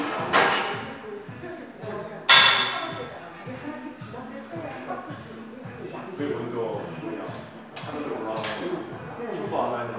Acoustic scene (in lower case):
crowded indoor space